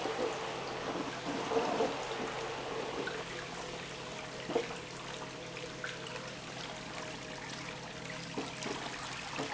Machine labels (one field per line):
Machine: pump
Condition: abnormal